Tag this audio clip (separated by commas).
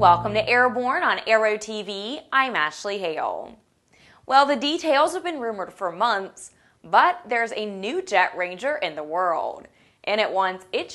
Music, Speech